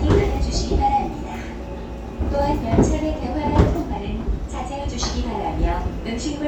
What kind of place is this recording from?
subway train